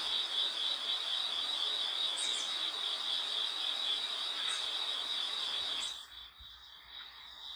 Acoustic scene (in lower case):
park